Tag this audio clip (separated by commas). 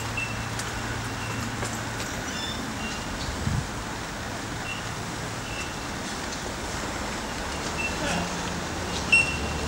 outside, rural or natural